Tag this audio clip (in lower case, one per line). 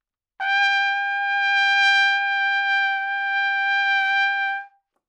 music
trumpet
brass instrument
musical instrument